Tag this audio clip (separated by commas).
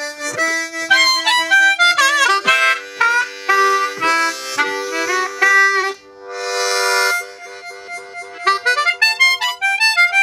playing harmonica